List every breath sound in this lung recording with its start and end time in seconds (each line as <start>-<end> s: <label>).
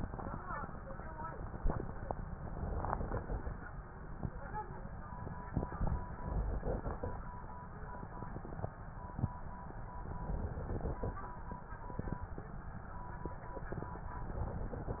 2.37-3.56 s: inhalation
5.48-7.16 s: inhalation
10.20-11.21 s: inhalation
14.24-15.00 s: inhalation